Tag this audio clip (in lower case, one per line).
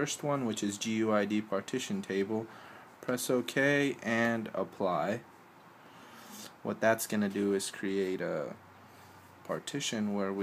speech